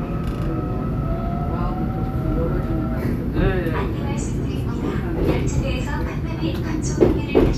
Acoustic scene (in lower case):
subway train